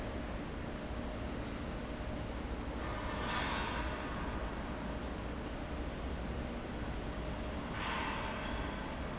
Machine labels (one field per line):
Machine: fan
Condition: abnormal